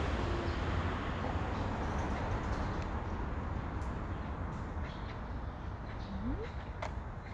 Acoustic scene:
street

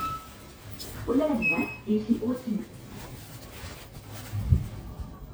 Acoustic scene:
elevator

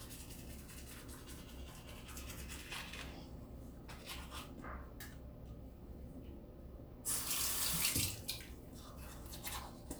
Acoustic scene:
restroom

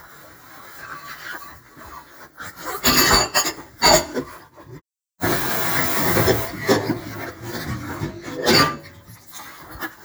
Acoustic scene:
kitchen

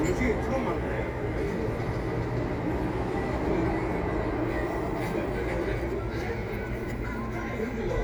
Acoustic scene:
residential area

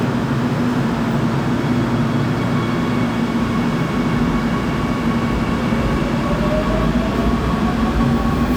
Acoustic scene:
subway station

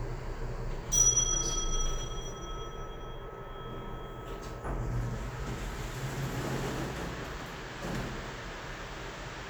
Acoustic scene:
elevator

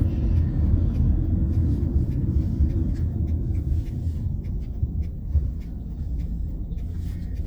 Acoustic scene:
car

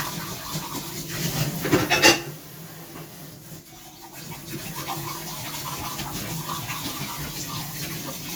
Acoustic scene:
kitchen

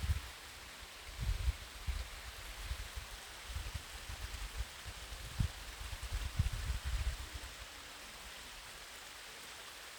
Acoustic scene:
park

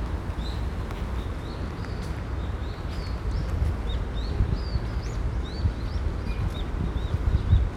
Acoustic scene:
park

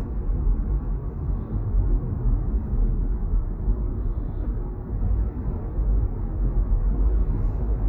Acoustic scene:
car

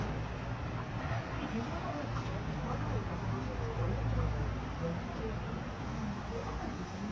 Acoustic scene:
residential area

